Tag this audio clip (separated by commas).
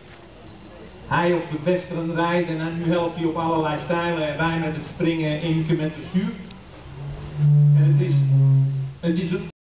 Speech